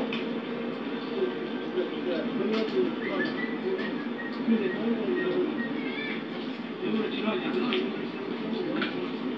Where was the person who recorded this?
in a park